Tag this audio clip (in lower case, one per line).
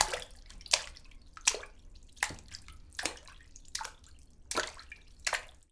liquid
splash